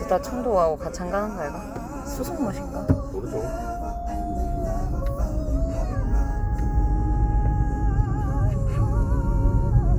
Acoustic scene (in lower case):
car